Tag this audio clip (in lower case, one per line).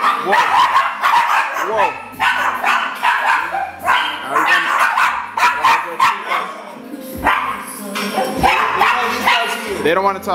bark
music
speech
dog barking